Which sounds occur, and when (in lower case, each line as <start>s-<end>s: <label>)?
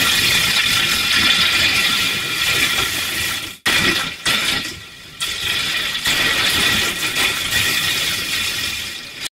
5.2s-9.3s: sound effect